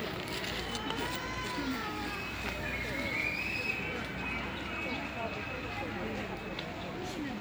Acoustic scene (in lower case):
park